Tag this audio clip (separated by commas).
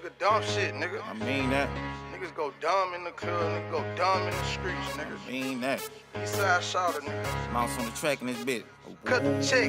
Speech, Music